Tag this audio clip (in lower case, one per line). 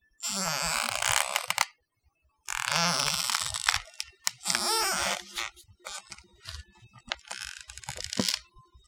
squeak